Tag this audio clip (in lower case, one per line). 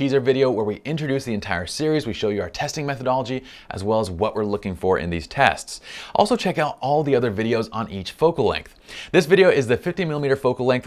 speech